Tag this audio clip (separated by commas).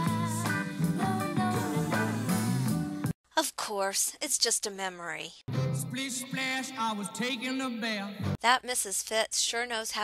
Speech, Music